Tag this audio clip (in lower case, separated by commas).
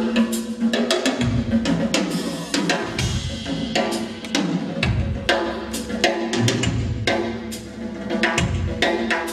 drum, drum kit, cymbal, musical instrument, bass drum, percussion, music